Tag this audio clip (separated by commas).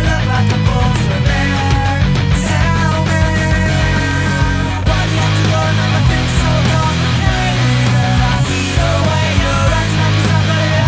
Music, Grunge